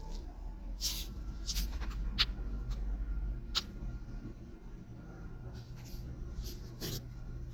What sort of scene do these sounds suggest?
elevator